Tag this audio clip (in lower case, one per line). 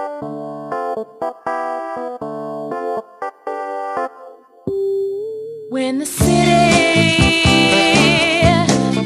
funk
music